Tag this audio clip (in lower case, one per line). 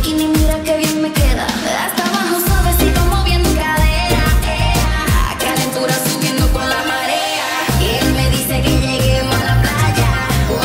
music